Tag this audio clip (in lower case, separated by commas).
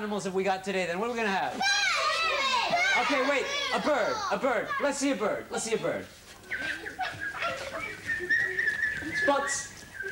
speech, child speech